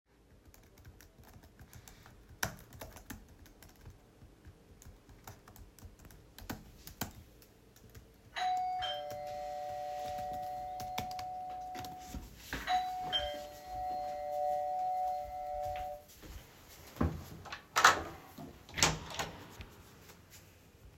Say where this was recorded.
bedroom